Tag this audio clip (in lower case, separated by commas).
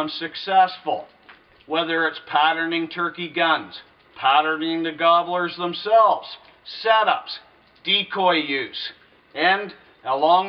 speech